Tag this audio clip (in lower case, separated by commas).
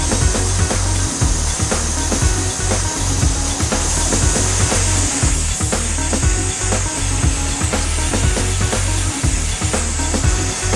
music, spray